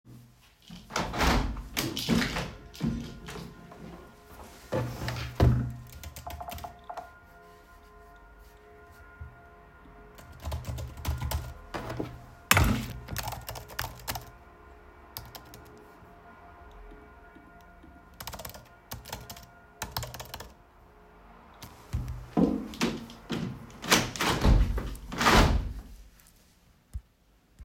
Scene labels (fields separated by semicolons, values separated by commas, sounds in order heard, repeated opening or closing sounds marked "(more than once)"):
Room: office; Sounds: window, keyboard typing